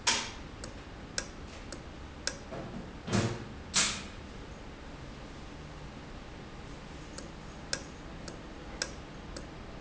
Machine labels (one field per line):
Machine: valve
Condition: normal